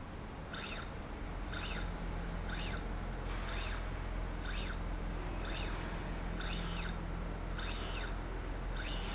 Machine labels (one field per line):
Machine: slide rail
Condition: normal